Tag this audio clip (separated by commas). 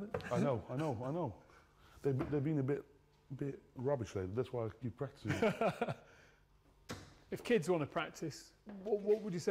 playing darts